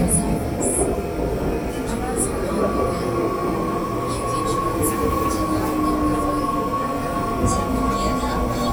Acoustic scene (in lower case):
subway train